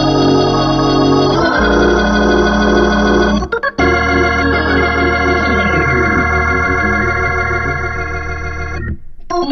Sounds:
playing hammond organ

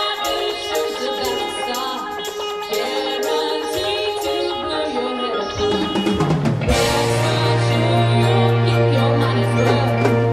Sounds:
Mallet percussion, Marimba, Glockenspiel

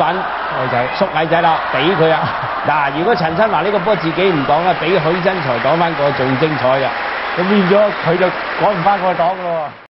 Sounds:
Speech

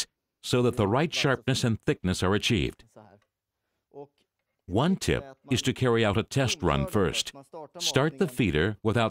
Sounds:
Speech

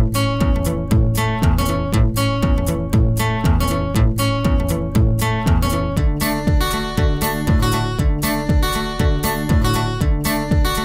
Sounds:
Music

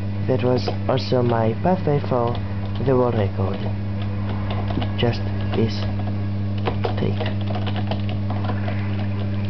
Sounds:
Music, Speech

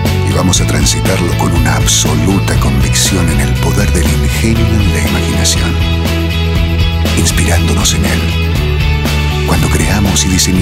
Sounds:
Speech, Music

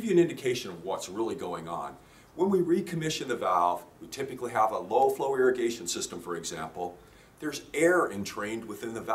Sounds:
Speech

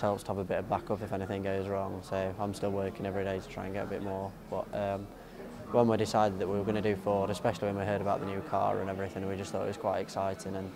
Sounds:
Speech

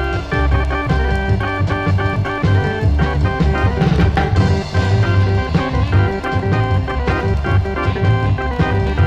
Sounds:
Progressive rock, Music

